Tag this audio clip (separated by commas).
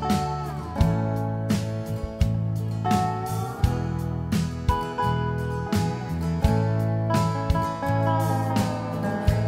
Music, Tender music